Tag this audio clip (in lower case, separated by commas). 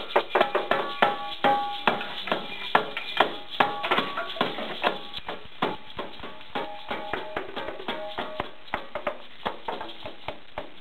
wood block, music, percussion